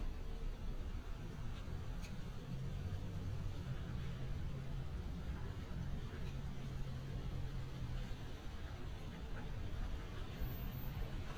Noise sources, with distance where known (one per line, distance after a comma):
background noise